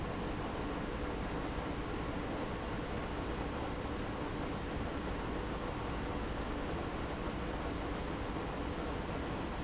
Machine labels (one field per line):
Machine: pump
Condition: abnormal